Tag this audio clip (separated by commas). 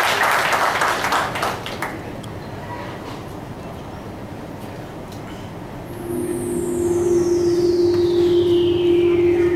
Music, Speech